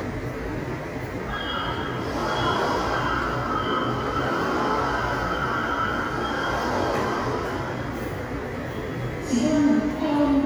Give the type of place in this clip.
subway station